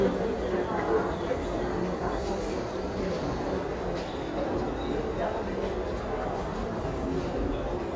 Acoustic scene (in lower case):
crowded indoor space